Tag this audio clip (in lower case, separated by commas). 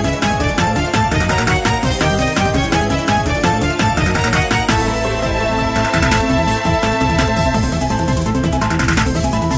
music